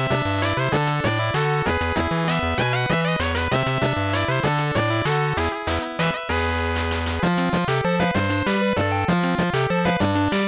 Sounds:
video game music
music

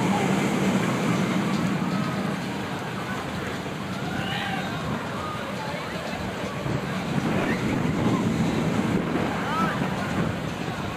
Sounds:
speech

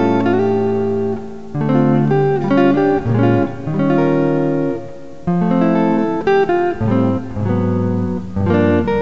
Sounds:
guitar
music
musical instrument
electric guitar

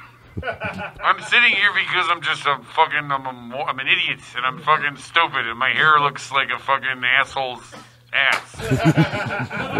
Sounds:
speech

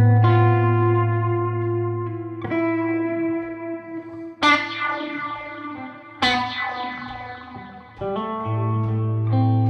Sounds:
reverberation
music
distortion
musical instrument
effects unit
echo
guitar
electric guitar
plucked string instrument

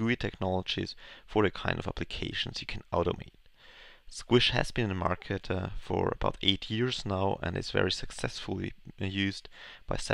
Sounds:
speech

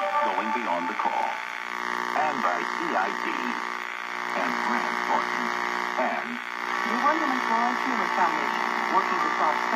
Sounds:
hum

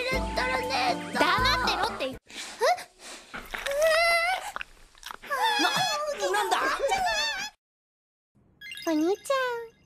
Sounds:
music
speech

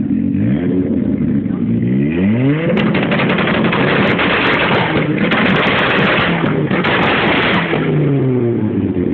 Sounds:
clatter

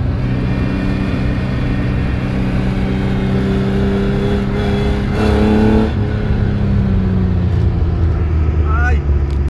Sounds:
vehicle
motor vehicle (road)
car
speech

